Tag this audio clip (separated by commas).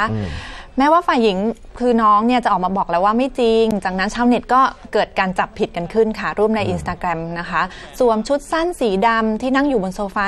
Speech